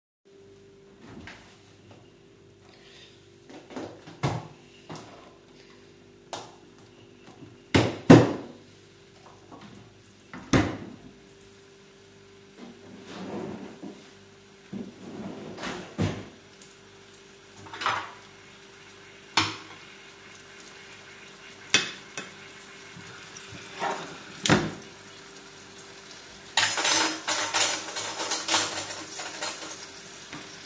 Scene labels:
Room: kitchen; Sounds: wardrobe or drawer (more than once), cutlery and dishes

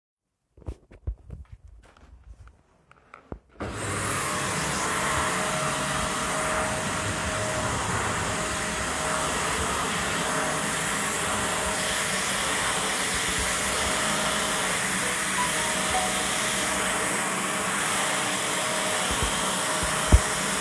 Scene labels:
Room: bedroom; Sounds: vacuum cleaner, phone ringing

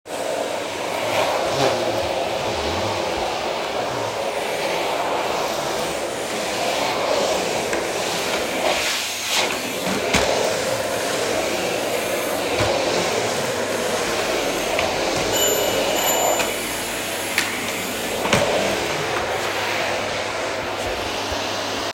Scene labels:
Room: living room; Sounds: vacuum cleaner, bell ringing

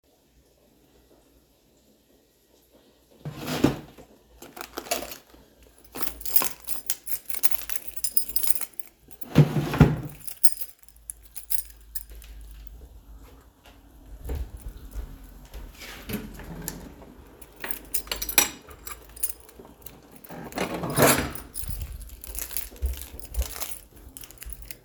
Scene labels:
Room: bedroom; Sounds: wardrobe or drawer (more than once), keys, window

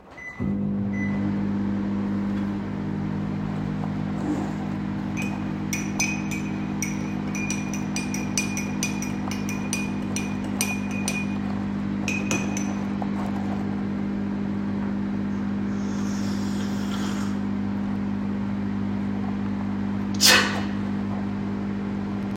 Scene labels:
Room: kitchen; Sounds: microwave, cutlery and dishes, coffee machine

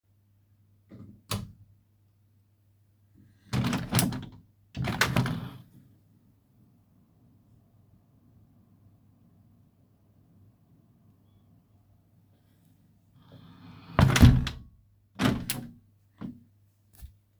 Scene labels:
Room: office; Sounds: light switch, window (more than once)

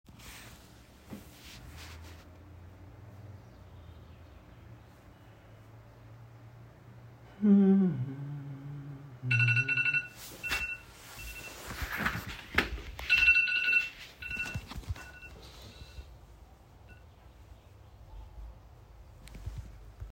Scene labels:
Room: bedroom; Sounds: phone ringing, footsteps

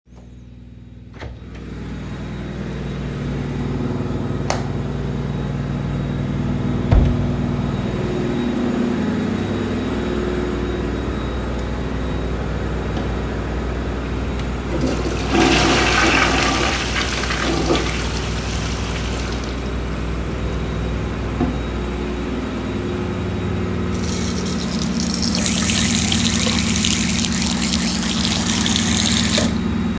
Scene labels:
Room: lavatory; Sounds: door, light switch, toilet flushing, running water

